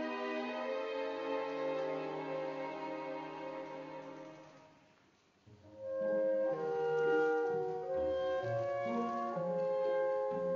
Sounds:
orchestra, music, bowed string instrument

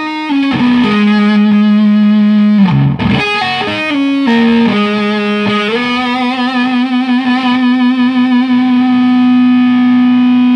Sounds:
guitar, musical instrument, distortion, music

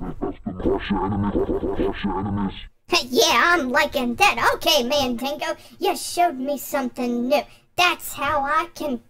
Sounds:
speech

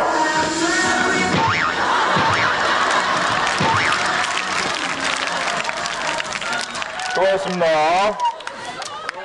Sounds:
speech

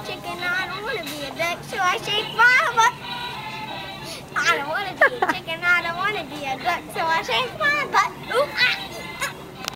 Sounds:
music, speech

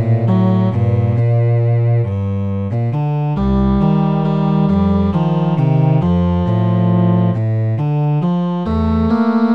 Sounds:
music, cello

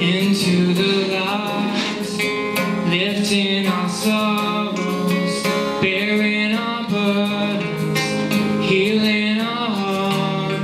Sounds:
blues, music

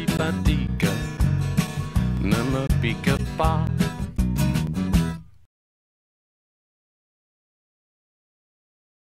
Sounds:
music

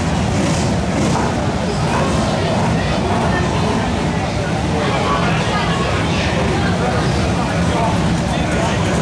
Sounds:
vehicle, speech

